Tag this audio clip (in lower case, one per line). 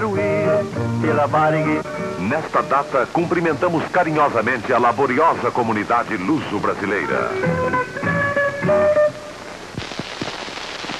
music
speech